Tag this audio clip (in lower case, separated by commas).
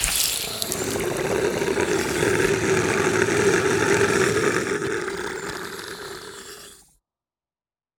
growling, animal